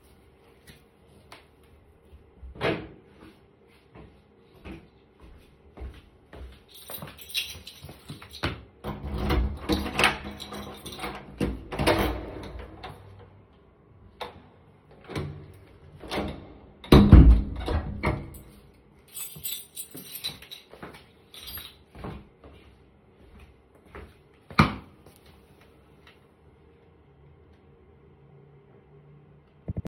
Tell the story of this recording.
I placed the phone near the apartment entrance. I opened and closed the door while moving through the entrance area. My footsteps are audible during the movement. The keychain sound occurs while handling the keys near the door.